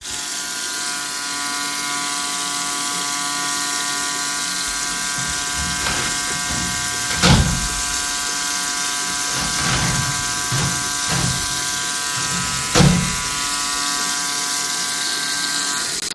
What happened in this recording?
I brushed my teeth with an electric toothbrush while the water was running. I then opened and closed the shower door.